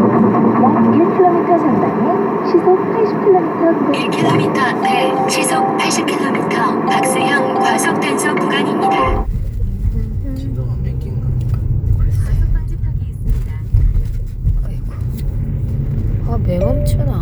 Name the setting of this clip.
car